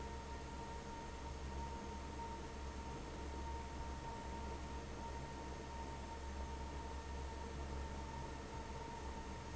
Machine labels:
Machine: fan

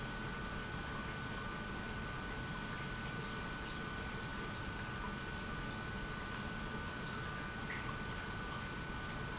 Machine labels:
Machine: pump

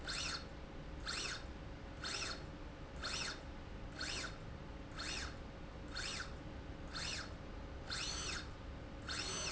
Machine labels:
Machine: slide rail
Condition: normal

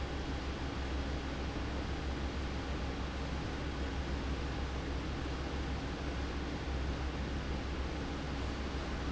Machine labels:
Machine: fan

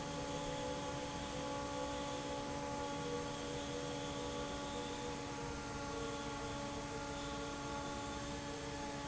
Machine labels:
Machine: fan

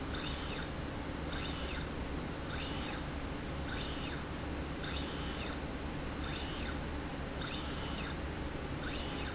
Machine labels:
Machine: slide rail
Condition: normal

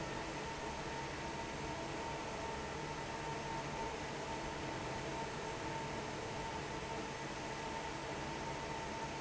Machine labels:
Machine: fan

